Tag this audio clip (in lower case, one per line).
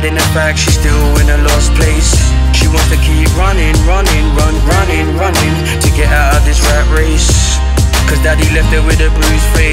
music